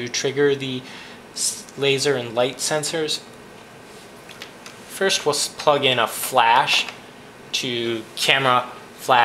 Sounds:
Speech

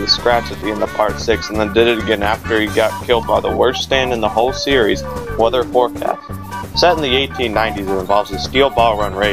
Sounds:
Speech, Music

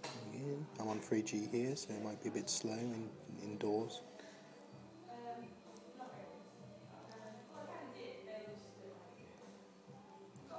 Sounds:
Speech

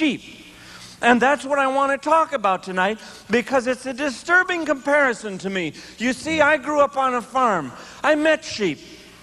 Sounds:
Speech

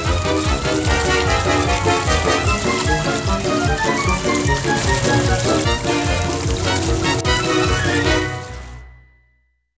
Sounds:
Music

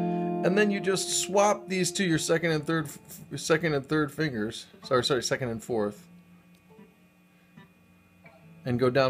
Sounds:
Guitar, inside a small room, Music, Plucked string instrument, Musical instrument

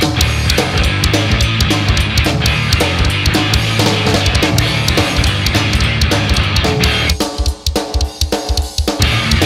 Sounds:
Music

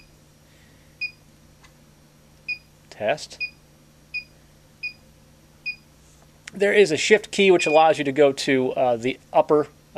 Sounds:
Speech

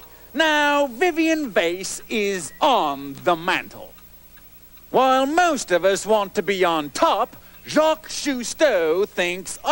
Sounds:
Speech, Tick

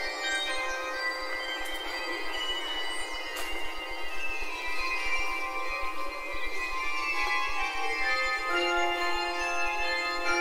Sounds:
Music

